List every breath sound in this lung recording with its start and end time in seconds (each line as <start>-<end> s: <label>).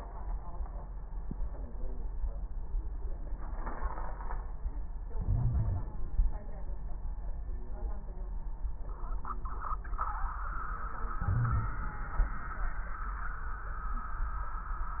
5.14-6.11 s: inhalation
5.14-6.11 s: crackles
11.21-11.95 s: inhalation